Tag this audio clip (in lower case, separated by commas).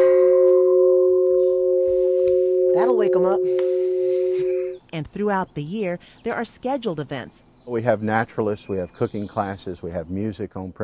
tubular bells